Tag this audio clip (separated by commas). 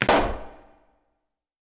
Explosion